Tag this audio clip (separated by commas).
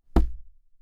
thud